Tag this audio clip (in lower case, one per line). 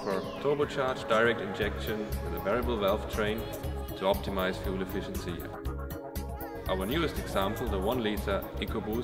music
speech